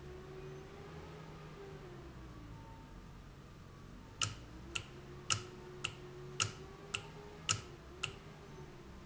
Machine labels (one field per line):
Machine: valve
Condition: normal